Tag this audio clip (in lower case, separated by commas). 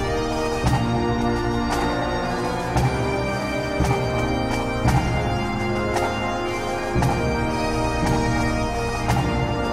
bagpipes, playing bagpipes, musical instrument, music, theme music